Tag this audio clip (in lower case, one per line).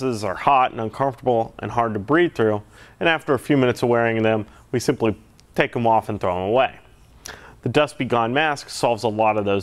speech